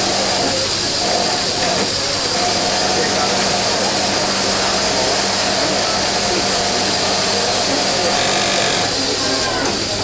A high frequency sound from a sewing machine